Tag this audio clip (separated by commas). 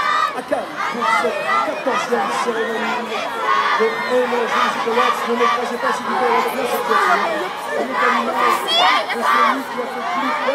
Speech, kid speaking